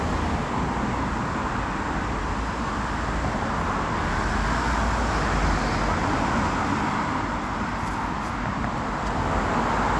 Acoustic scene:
street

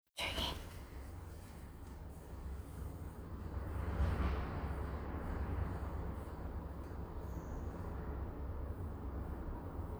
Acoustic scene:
elevator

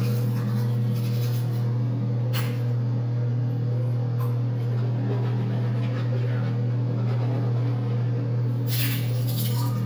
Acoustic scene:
restroom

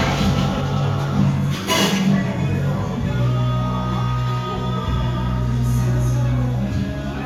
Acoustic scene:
cafe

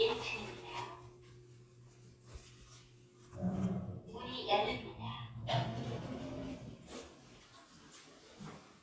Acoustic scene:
elevator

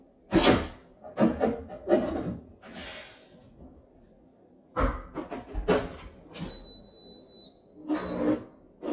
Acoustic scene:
kitchen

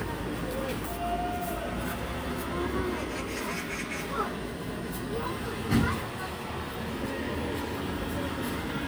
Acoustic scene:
residential area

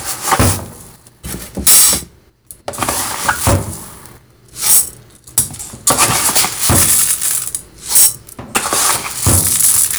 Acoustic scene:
kitchen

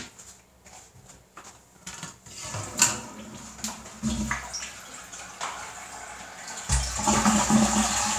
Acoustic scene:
restroom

